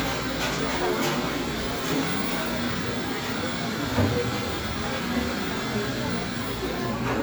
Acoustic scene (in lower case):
cafe